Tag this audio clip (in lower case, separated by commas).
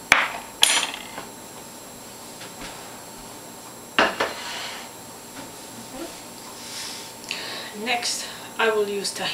speech